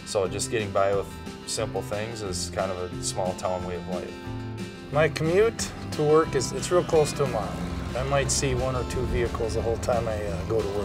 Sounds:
speech, music, vehicle, car

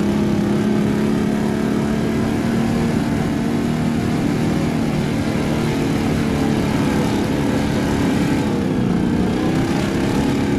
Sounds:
speedboat, water vehicle

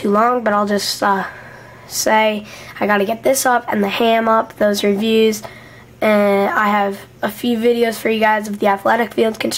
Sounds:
speech

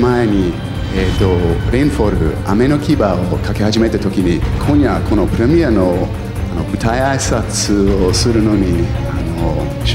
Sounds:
music, speech

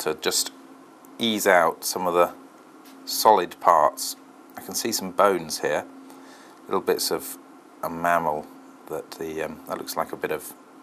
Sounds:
inside a small room, speech

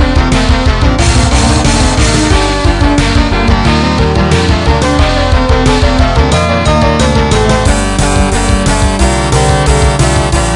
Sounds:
guitar, electric guitar, musical instrument, plucked string instrument, music

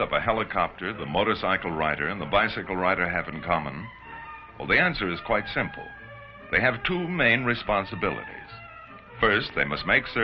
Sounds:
speech, music

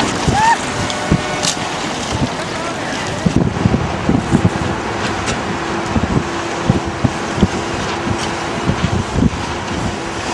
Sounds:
boat, sailboat, wind, wind noise (microphone), sailing

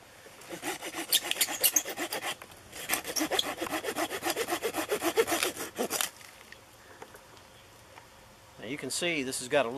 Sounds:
speech

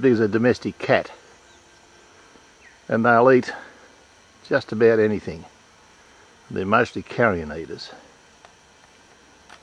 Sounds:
speech, animal

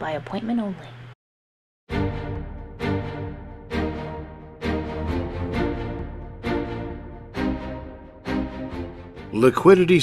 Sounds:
speech, music

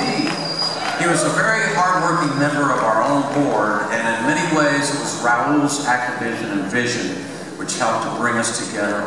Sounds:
speech

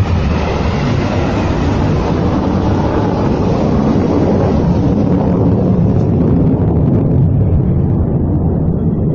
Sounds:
missile launch

